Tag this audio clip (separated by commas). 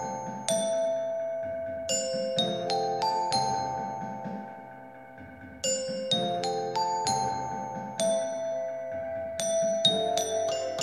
playing glockenspiel